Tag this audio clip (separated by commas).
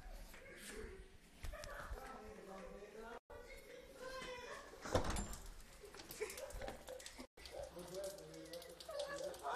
Speech, Door